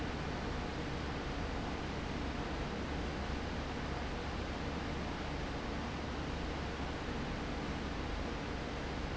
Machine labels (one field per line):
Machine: fan